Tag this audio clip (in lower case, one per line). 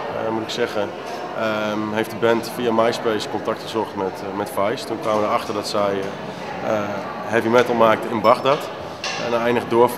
speech